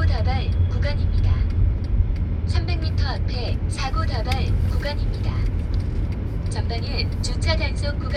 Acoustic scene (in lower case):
car